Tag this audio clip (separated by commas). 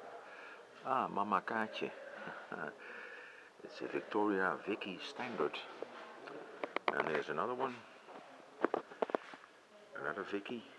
Speech